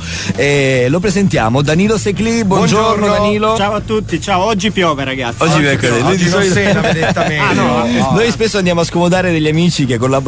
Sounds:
speech
radio
music

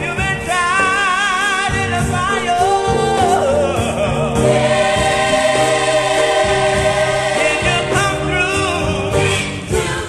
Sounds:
music
choir

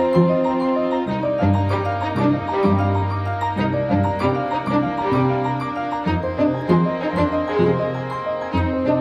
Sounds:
piano

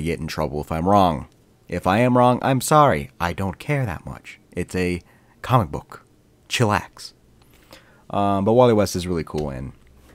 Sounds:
speech
narration

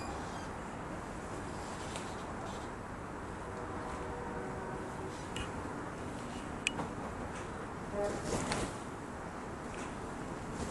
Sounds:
rodents

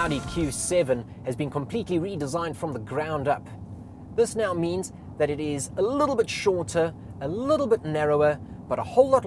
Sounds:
music
speech

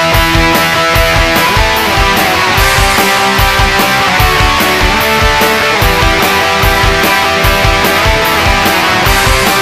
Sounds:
music

